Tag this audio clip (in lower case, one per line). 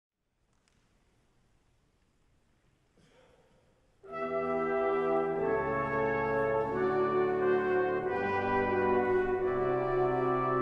trumpet
brass instrument
playing french horn
french horn